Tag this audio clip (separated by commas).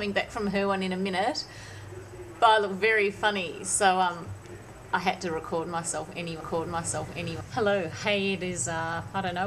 Speech